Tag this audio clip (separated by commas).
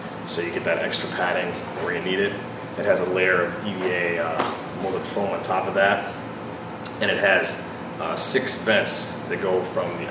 Speech